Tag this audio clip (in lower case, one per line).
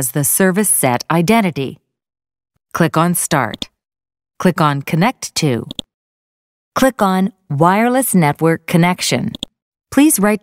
speech